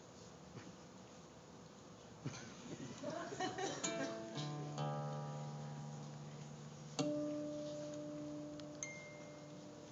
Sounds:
strum, plucked string instrument, guitar, acoustic guitar, music, musical instrument

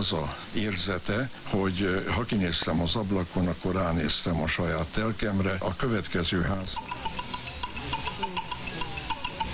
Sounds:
radio, speech, music

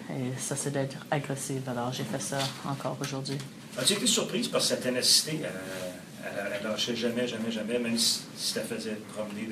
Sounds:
speech

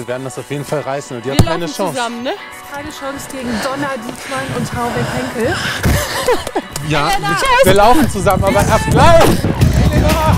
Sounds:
speech, music

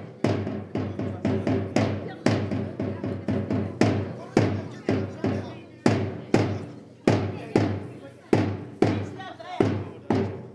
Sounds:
speech, music

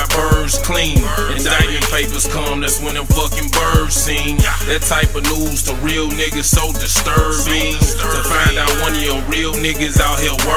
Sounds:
independent music, music

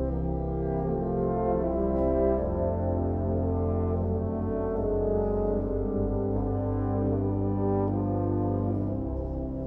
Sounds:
brass instrument, french horn, playing french horn

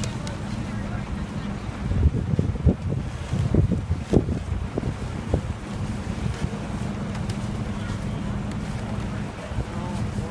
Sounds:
wind, speech

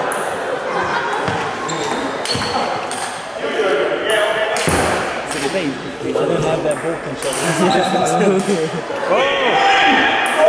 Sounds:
inside a large room or hall, speech

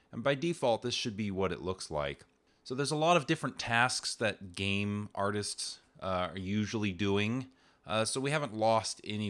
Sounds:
speech

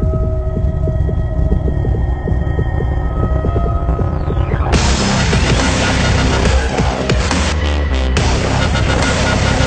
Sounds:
throbbing, hum

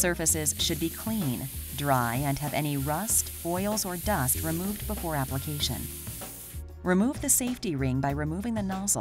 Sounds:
spray, speech, music

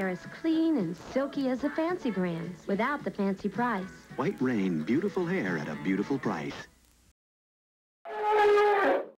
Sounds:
music, speech

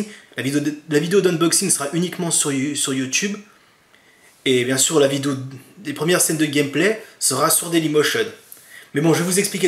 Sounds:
speech

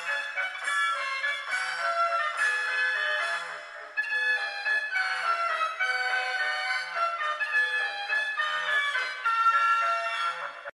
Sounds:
music

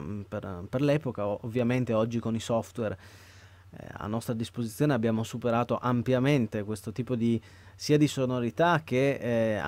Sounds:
speech

